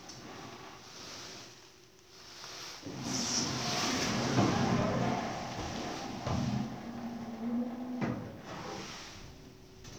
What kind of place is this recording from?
elevator